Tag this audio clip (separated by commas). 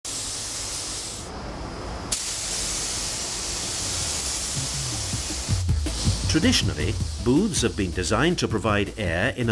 Hiss, Music, Speech